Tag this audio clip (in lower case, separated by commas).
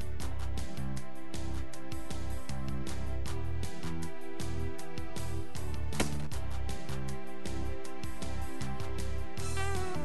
music